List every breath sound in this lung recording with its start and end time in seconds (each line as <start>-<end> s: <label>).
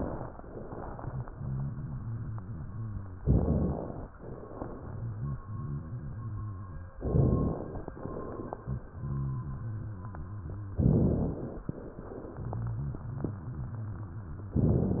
0.85-3.17 s: rhonchi
3.19-4.02 s: inhalation
4.23-6.95 s: rhonchi
7.02-7.86 s: inhalation
8.52-10.74 s: rhonchi
10.85-11.69 s: inhalation
12.33-14.55 s: rhonchi